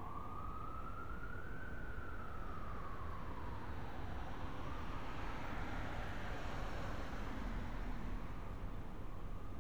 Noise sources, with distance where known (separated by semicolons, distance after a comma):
siren, far